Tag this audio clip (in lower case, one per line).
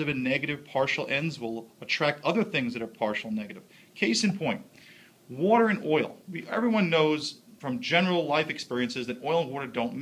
speech